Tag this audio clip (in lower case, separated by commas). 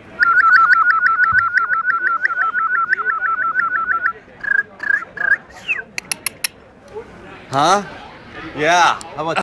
speech